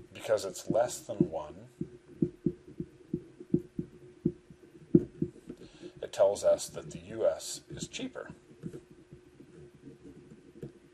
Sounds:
inside a small room, Speech

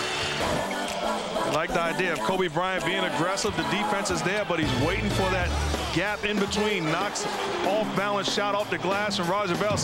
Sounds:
Speech, Music

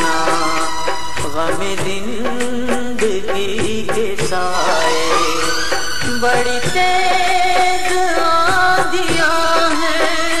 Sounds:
Singing, Music, Middle Eastern music

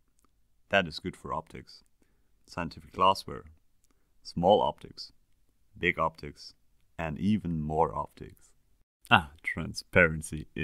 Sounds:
Speech

